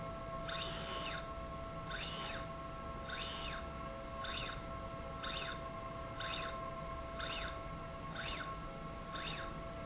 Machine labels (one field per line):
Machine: slide rail